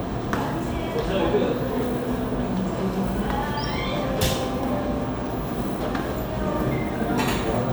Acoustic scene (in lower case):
cafe